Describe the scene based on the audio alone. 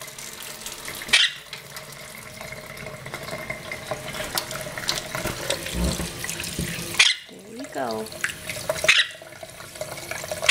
Water falling from the sink ending with a man speaking